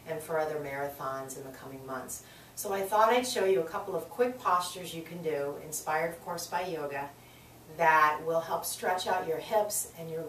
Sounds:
Speech

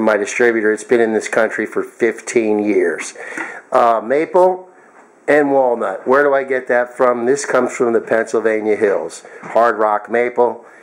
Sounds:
Speech

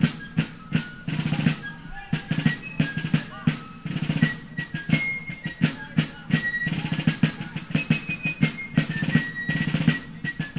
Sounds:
Music, Musical instrument, Drum kit, Drum, Tender music, Bass drum, Speech

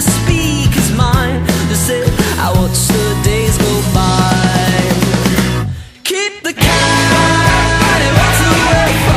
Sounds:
Music

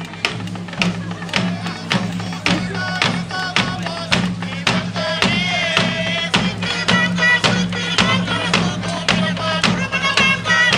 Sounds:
Music, Speech

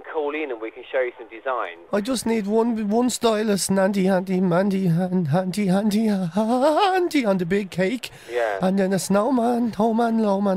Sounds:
Speech

